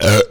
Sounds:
eructation

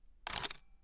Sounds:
camera, mechanisms

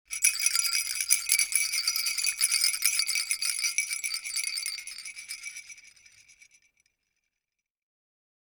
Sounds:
rattle

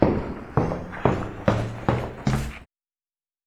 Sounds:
walk

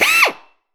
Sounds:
tools, drill, power tool

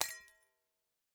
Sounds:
glass, shatter

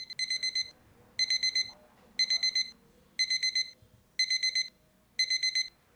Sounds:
alarm

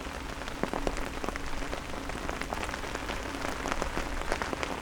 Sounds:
rain, water

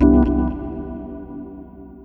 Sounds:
music, musical instrument, organ, keyboard (musical)

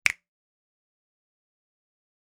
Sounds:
hands, finger snapping

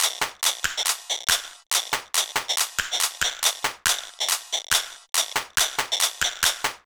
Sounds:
music, musical instrument, percussion, rattle (instrument)

